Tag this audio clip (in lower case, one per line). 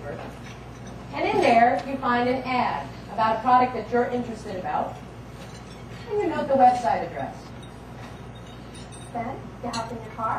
speech